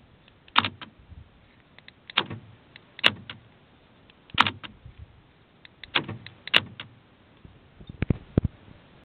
An object is clicking